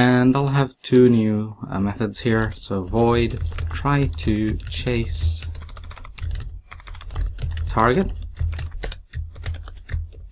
A man talks and types on a keyboard